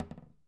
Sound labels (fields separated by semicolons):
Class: cupboard; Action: closing; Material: wooden